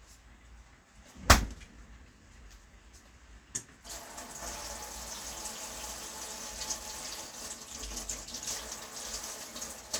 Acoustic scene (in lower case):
kitchen